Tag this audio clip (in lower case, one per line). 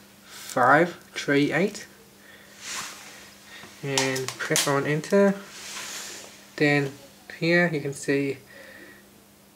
speech